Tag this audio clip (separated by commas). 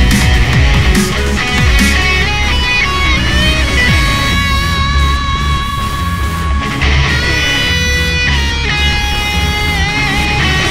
Music